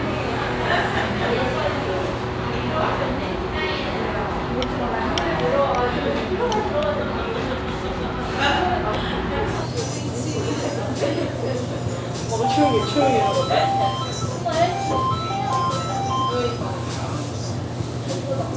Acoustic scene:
restaurant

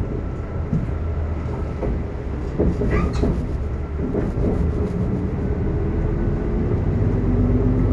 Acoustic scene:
bus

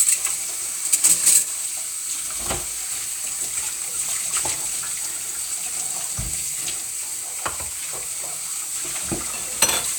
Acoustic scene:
kitchen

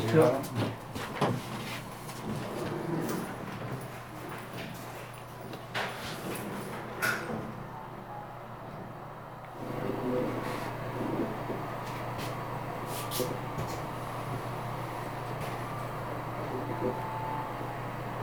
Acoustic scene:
elevator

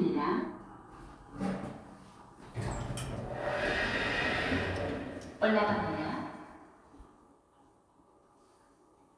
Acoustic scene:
elevator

